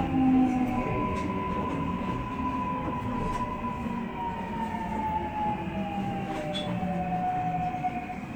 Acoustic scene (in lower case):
subway train